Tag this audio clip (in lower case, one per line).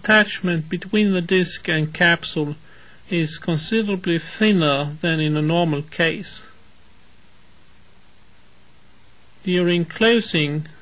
speech